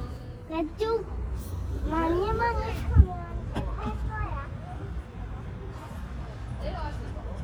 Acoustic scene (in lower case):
residential area